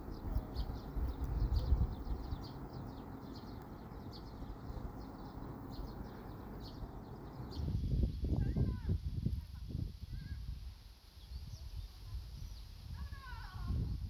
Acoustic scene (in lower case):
park